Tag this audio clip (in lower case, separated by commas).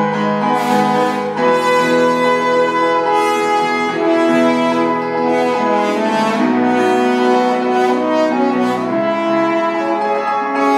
music, orchestra, brass instrument, playing french horn, musical instrument, french horn, piano